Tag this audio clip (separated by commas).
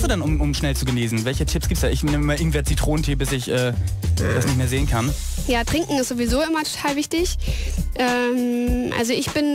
Speech, Music